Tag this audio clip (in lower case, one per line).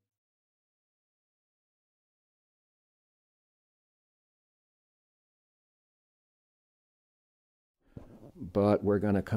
speech